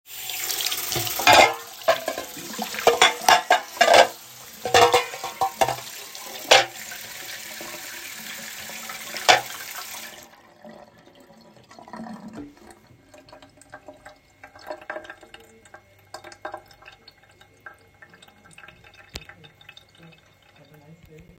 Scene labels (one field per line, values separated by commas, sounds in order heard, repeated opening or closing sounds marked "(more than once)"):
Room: kitchen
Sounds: running water, cutlery and dishes